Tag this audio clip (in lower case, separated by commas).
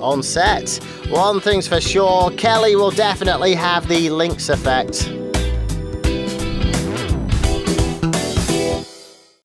music, speech